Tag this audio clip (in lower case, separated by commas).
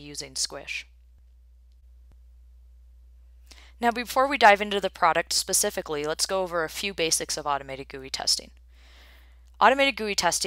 speech